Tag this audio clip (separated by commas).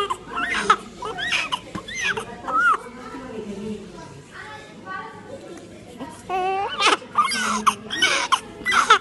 Speech